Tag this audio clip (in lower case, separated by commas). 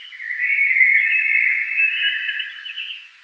animal, bird, wild animals